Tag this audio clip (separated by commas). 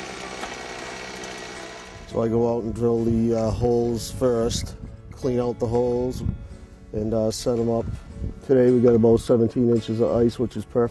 Speech, Music, outside, rural or natural